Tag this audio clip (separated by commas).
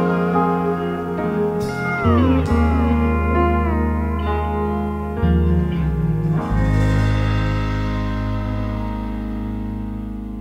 Electric piano, Music